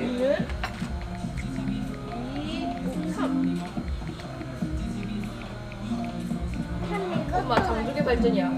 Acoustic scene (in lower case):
crowded indoor space